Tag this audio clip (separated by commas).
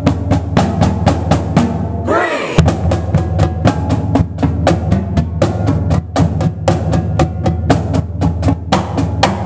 playing snare drum, Bass drum, Percussion, Snare drum, Drum